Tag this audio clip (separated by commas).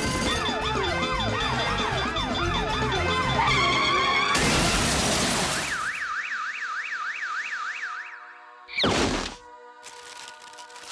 Music